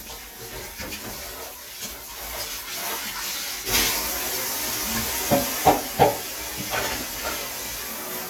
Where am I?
in a kitchen